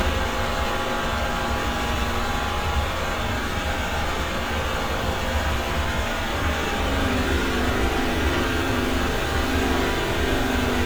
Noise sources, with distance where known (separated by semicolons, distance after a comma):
rock drill, near